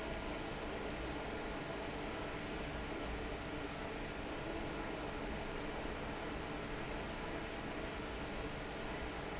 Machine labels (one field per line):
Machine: fan